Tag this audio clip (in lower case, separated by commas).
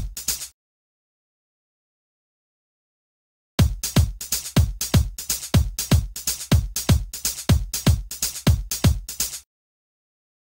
electronica, drum machine, music, sampler, house music